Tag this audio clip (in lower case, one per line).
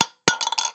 home sounds
coin (dropping)